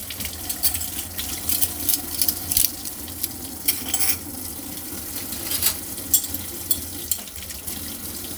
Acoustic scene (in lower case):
kitchen